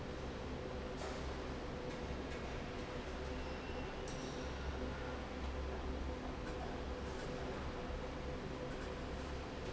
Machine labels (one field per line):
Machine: fan